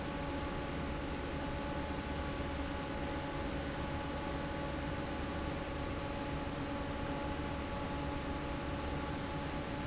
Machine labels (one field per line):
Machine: fan